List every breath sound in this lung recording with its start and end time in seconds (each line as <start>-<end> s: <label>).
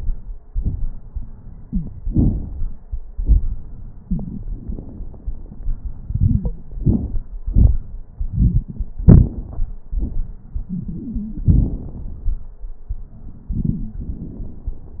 1.65-1.83 s: wheeze
10.67-11.81 s: wheeze